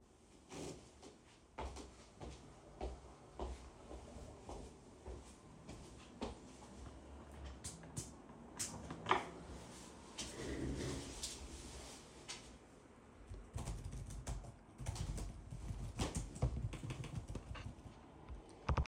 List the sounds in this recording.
footsteps, light switch, keyboard typing